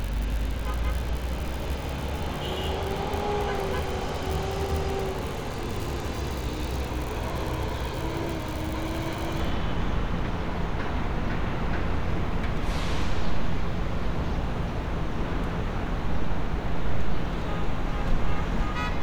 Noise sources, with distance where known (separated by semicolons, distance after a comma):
engine of unclear size; car horn